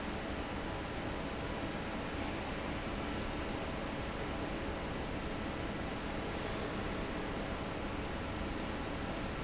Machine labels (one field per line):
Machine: fan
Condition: normal